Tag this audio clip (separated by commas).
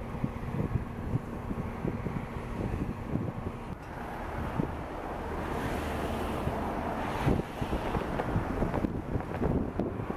outside, urban or man-made